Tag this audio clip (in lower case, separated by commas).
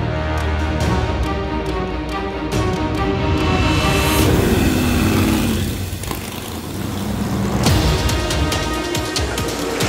car passing by